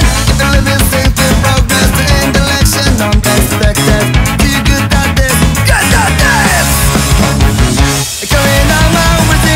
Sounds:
music

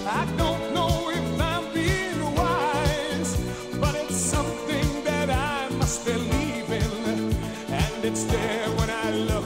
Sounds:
music
christmas music

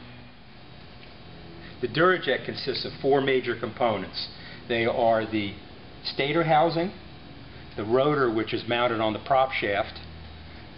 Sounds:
speech

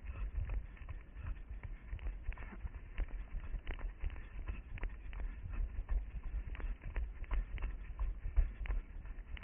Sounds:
outside, urban or man-made
run

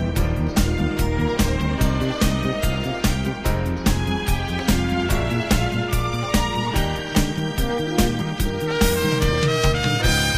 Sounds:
music

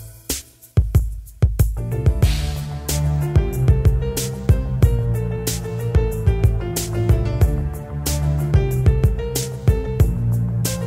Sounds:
soul music
music
blues

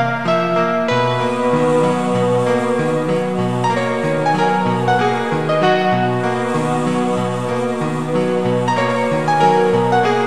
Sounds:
music
rhythm and blues

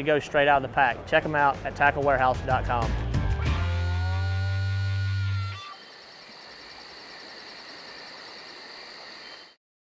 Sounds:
music
speech

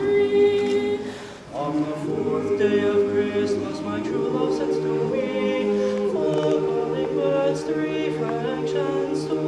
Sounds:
choir
music

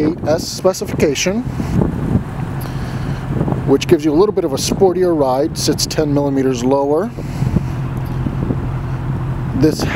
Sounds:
speech

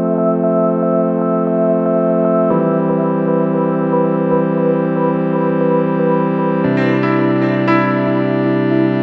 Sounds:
chorus effect
music
effects unit

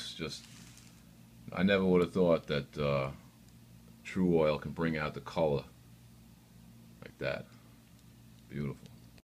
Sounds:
speech

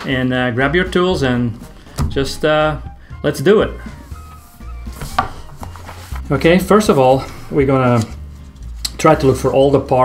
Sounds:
music
speech

